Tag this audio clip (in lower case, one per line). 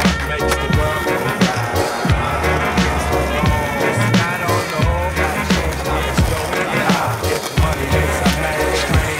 music